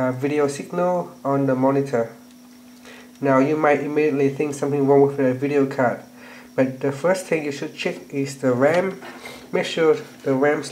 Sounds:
Speech

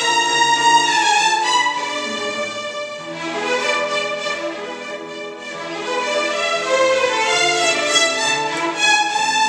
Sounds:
Music, Orchestra

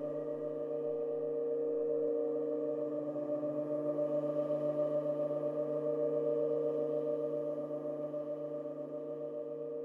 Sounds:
Singing bowl

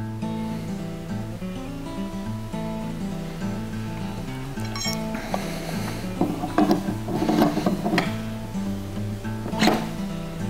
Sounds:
Music

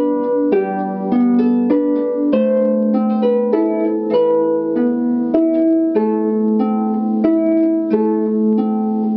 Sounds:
playing harp

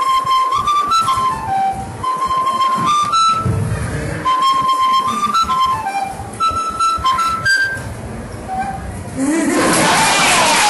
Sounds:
Speech, Music, Musical instrument, inside a large room or hall, Flute

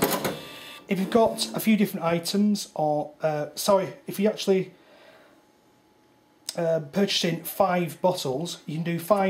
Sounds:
Speech, Cash register

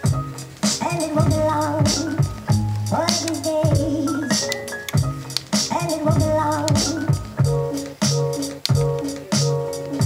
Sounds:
Music

